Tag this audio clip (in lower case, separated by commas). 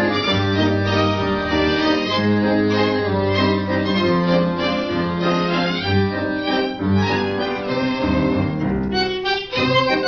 music, bowed string instrument